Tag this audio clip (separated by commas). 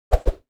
swish